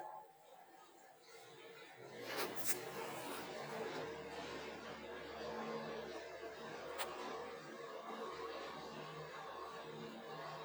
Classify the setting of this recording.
elevator